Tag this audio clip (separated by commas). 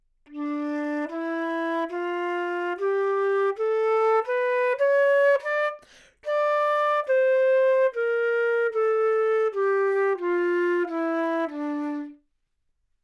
woodwind instrument, Music, Musical instrument